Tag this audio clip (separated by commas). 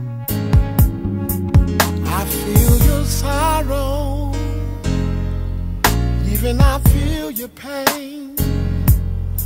Music